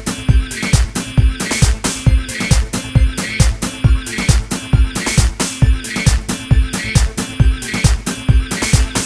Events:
0.0s-9.0s: music

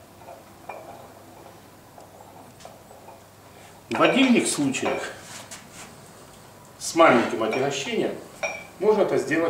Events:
0.0s-9.4s: mechanisms
0.1s-0.4s: generic impact sounds
0.6s-1.0s: generic impact sounds
1.3s-1.5s: generic impact sounds
1.9s-2.5s: generic impact sounds
2.6s-3.2s: generic impact sounds
3.4s-3.8s: breathing
3.9s-5.1s: man speaking
3.9s-4.3s: generic impact sounds
4.8s-5.0s: generic impact sounds
5.2s-5.9s: surface contact
6.2s-6.4s: generic impact sounds
6.8s-8.2s: man speaking
7.4s-7.7s: generic impact sounds
8.4s-8.6s: generic impact sounds
8.8s-9.4s: man speaking

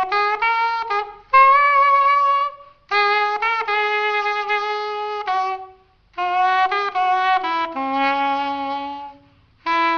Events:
0.0s-6.0s: music
0.0s-9.9s: mechanisms
2.6s-2.8s: breathing
6.2s-9.4s: music
9.2s-9.5s: breathing
9.6s-9.9s: music

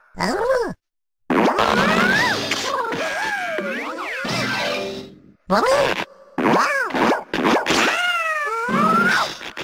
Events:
0.0s-0.7s: sound effect
1.2s-5.3s: sound effect
1.3s-9.6s: background noise
5.5s-6.1s: sound effect
6.4s-9.6s: sound effect

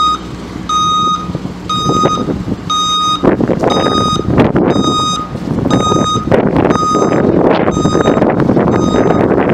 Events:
0.0s-0.3s: reversing beeps
0.0s-9.5s: truck
0.6s-1.3s: reversing beeps
1.6s-2.3s: reversing beeps
1.7s-2.5s: wind noise (microphone)
2.6s-3.2s: reversing beeps
3.1s-9.5s: wind noise (microphone)
3.6s-4.3s: reversing beeps
4.6s-5.3s: reversing beeps
5.7s-6.2s: reversing beeps
6.6s-7.2s: reversing beeps
7.6s-8.2s: reversing beeps
8.6s-9.2s: reversing beeps

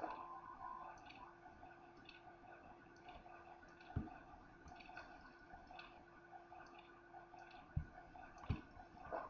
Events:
0.0s-9.2s: clock
0.0s-9.2s: video game sound
0.0s-0.2s: generic impact sounds
0.9s-1.2s: generic impact sounds
1.9s-2.2s: generic impact sounds
2.9s-3.2s: generic impact sounds
3.6s-4.1s: generic impact sounds
4.6s-5.4s: generic impact sounds
5.7s-5.9s: generic impact sounds
6.6s-6.9s: generic impact sounds
7.4s-7.6s: generic impact sounds
7.7s-7.8s: generic impact sounds
8.3s-8.6s: generic impact sounds
9.1s-9.2s: generic impact sounds

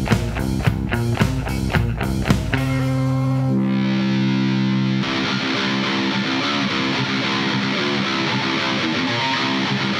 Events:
0.0s-9.9s: music

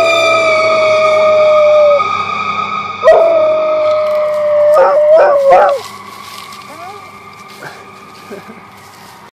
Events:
0.0s-2.0s: howl
0.0s-9.3s: fire truck (siren)
3.0s-5.8s: howl
3.8s-4.4s: surface contact
4.7s-5.0s: bark
5.1s-5.4s: bark
5.5s-5.7s: bark
5.5s-7.0s: surface contact
6.7s-7.0s: dog
7.3s-8.5s: surface contact
7.6s-7.8s: laughter
8.3s-8.6s: laughter
8.7s-9.2s: surface contact

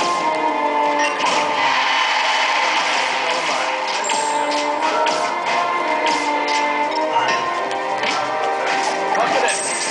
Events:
0.0s-9.9s: music
0.0s-9.9s: video game sound
0.3s-0.4s: tick
0.9s-1.1s: sound effect
1.2s-1.4s: generic impact sounds
1.4s-3.7s: sound effect
3.2s-3.7s: male speech
3.8s-4.1s: sound effect
4.4s-4.6s: sound effect
4.8s-4.9s: sound effect
5.0s-5.3s: sound effect
5.4s-5.6s: sound effect
6.0s-6.3s: sound effect
6.4s-6.6s: sound effect
6.8s-7.0s: sound effect
7.2s-7.4s: sound effect
7.7s-7.7s: generic impact sounds
7.9s-8.4s: human voice
8.0s-8.2s: generic impact sounds
8.0s-8.3s: sound effect
8.3s-8.4s: generic impact sounds
8.6s-8.9s: sound effect
9.1s-9.6s: male speech
9.4s-9.9s: sound effect

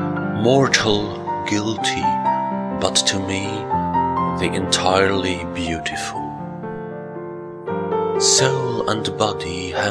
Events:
0.0s-9.9s: music
0.4s-1.1s: male speech
1.4s-2.0s: male speech
2.8s-3.6s: male speech
4.4s-4.6s: male speech
4.7s-5.4s: male speech
5.5s-6.1s: male speech
8.1s-9.0s: male speech
9.2s-9.9s: male speech

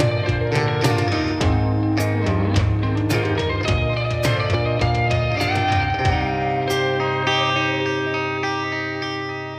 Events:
0.0s-9.5s: music

